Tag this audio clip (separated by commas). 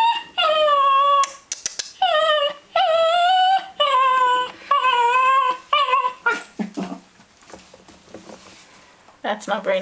Speech, Whimper, Animal, Dog, pets